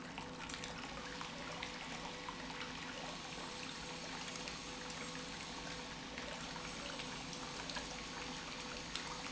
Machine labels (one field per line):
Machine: pump